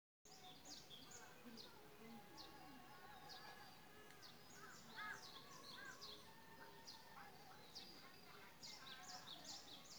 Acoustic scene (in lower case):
park